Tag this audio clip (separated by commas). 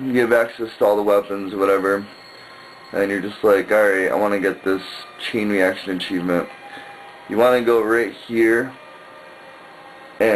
Speech, Music